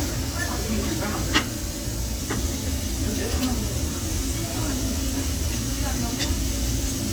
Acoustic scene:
crowded indoor space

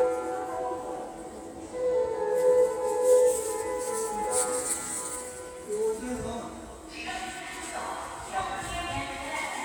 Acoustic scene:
subway station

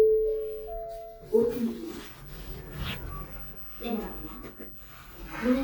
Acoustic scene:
elevator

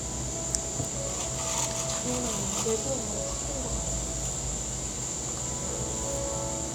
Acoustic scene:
cafe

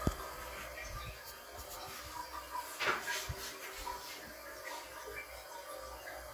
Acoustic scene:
restroom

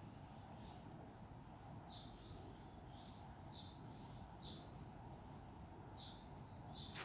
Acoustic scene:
park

